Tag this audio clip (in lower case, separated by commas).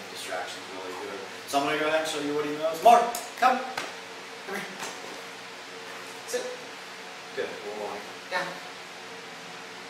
speech